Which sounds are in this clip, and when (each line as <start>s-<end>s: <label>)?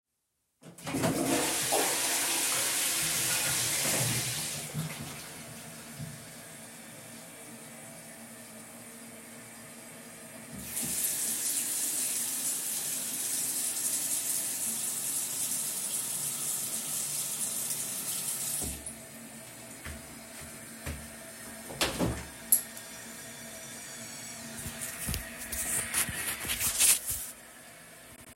0.7s-6.5s: toilet flushing
10.5s-18.9s: running water
19.7s-21.1s: footsteps
21.7s-22.9s: window